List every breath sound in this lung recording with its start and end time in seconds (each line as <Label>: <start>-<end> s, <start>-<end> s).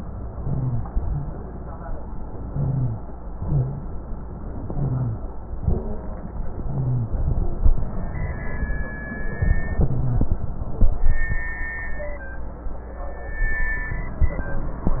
Inhalation: 2.45-2.98 s, 4.67-5.20 s, 6.58-7.12 s, 9.79-10.32 s
Exhalation: 3.38-3.91 s, 5.58-6.11 s
Rhonchi: 0.38-0.86 s, 2.52-3.00 s, 3.40-3.87 s, 4.72-5.20 s, 5.60-6.07 s, 6.58-7.12 s, 9.79-10.32 s